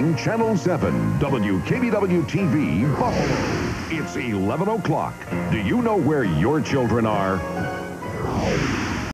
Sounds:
Music, Speech

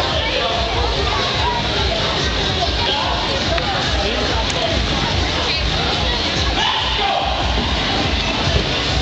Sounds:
Speech, Music

